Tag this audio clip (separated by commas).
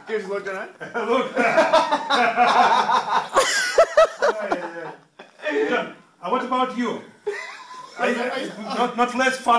people sniggering, inside a small room, Snicker, Speech